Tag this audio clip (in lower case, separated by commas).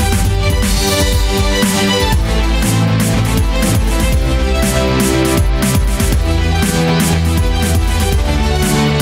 musical instrument, violin, music